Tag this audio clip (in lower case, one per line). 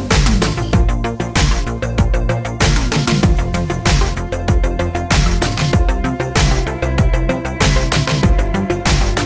music